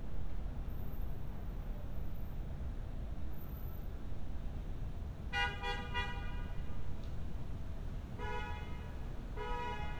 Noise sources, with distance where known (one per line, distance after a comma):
car horn, far